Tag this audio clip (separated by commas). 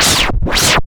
Musical instrument, Music, Scratching (performance technique)